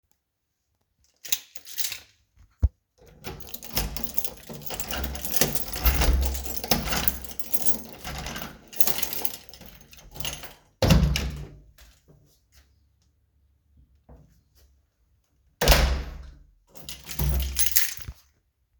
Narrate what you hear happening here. I unlocked the door, opened it, closed it and removed the key.